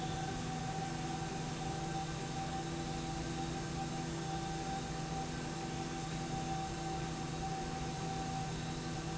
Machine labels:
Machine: slide rail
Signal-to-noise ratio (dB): -6 dB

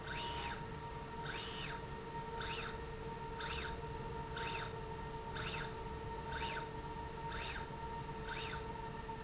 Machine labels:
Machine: slide rail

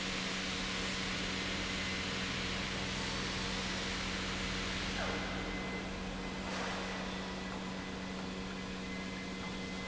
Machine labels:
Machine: pump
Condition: normal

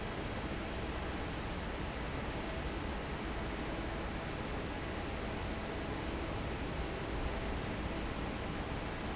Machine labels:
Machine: fan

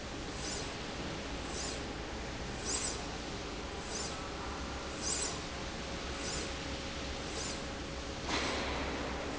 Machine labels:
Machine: slide rail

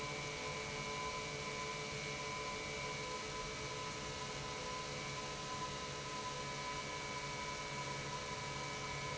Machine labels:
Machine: pump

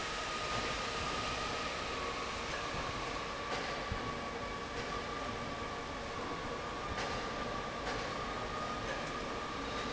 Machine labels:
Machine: fan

